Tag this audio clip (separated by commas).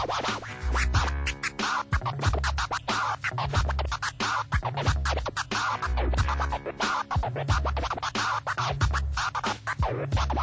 Scratching (performance technique), Music, Electronic music